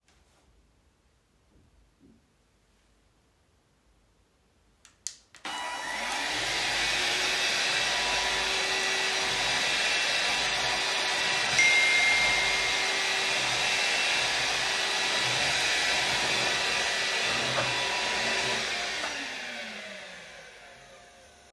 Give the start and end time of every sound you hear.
4.8s-21.5s: vacuum cleaner
11.5s-13.3s: phone ringing

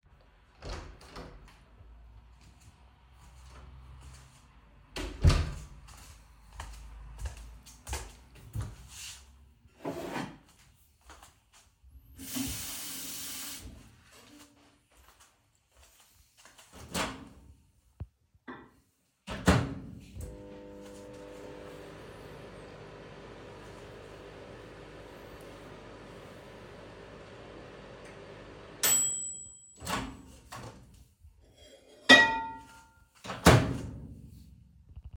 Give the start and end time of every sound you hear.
0.6s-1.4s: door
1.8s-4.8s: footsteps
4.8s-5.8s: door
6.5s-9.5s: footsteps
9.8s-10.6s: cutlery and dishes
11.1s-11.5s: footsteps
12.1s-13.8s: running water
14.2s-16.6s: footsteps
16.8s-17.4s: microwave
17.9s-18.8s: cutlery and dishes
19.0s-31.1s: microwave
31.9s-32.8s: cutlery and dishes
33.0s-34.0s: microwave

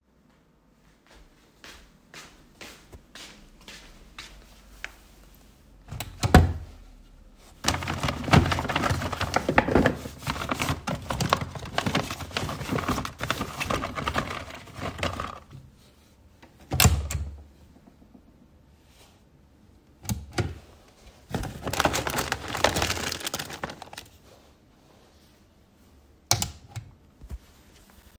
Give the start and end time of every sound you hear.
1.1s-5.0s: footsteps
5.9s-17.7s: wardrobe or drawer
20.0s-26.8s: wardrobe or drawer

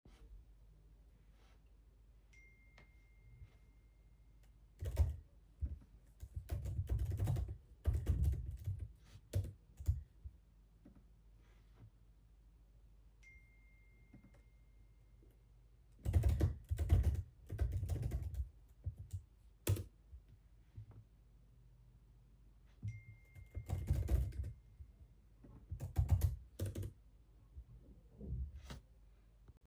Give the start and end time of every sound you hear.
2.3s-4.0s: phone ringing
4.7s-10.0s: keyboard typing
13.2s-15.1s: phone ringing
16.1s-19.9s: keyboard typing
22.9s-24.7s: phone ringing
23.5s-24.5s: keyboard typing
25.5s-27.0s: keyboard typing

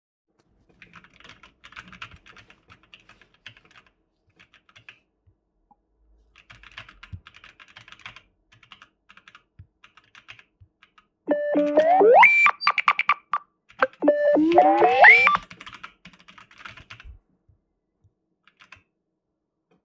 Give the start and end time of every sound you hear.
0.7s-3.9s: keyboard typing
4.4s-5.0s: keyboard typing
6.3s-11.1s: keyboard typing
11.3s-15.5s: phone ringing
11.5s-11.8s: keyboard typing
13.7s-17.2s: keyboard typing
18.4s-18.8s: keyboard typing

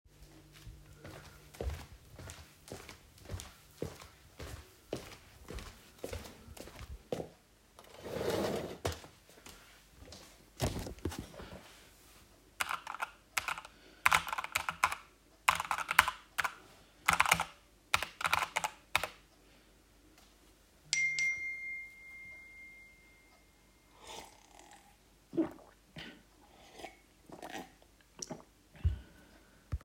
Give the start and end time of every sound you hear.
1.0s-7.4s: footsteps
12.5s-19.2s: keyboard typing
20.8s-23.6s: phone ringing

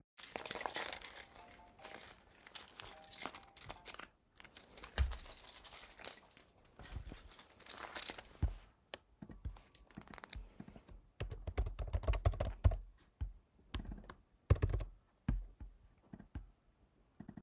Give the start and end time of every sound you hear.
0.0s-9.4s: keys
0.6s-4.8s: phone ringing
8.9s-17.4s: keyboard typing

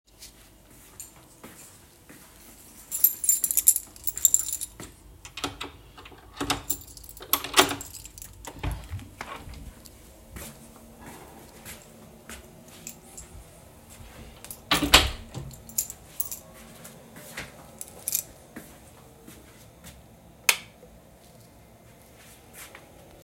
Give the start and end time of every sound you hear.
0.2s-5.1s: footsteps
2.9s-5.0s: keys
5.2s-8.2s: door
10.2s-13.4s: footsteps
14.7s-15.5s: door
15.6s-16.6s: keys
16.4s-20.2s: footsteps
17.7s-18.4s: keys
20.4s-20.8s: light switch

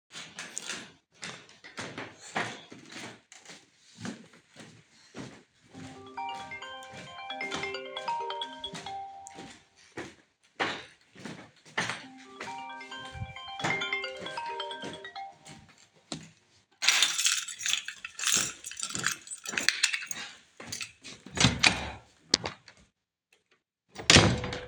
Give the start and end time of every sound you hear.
0.0s-16.2s: footsteps
5.6s-9.6s: phone ringing
11.9s-15.7s: phone ringing
16.8s-20.9s: keys
18.2s-21.1s: footsteps
21.1s-22.7s: door
23.9s-24.7s: door

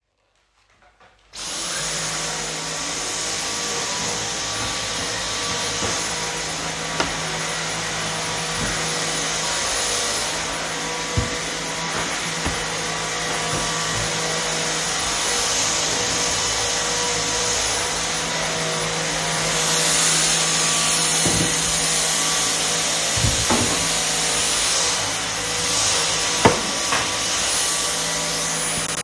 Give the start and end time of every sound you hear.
1.3s-29.0s: vacuum cleaner

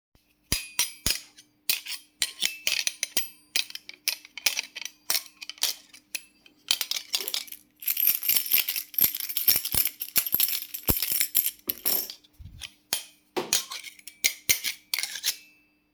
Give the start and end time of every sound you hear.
0.4s-7.6s: cutlery and dishes
7.8s-12.4s: keys
12.9s-15.9s: cutlery and dishes

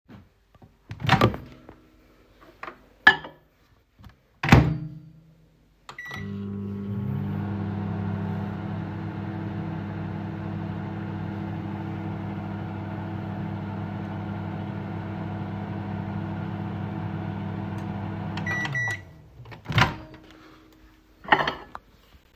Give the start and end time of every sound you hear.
0.7s-21.9s: microwave
3.0s-3.3s: cutlery and dishes
21.2s-21.8s: cutlery and dishes

